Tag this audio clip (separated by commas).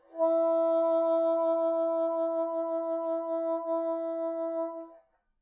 Music, Musical instrument, woodwind instrument